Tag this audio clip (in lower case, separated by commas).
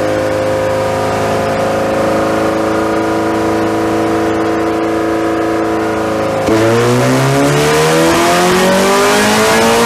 accelerating, medium engine (mid frequency), engine, vehicle, idling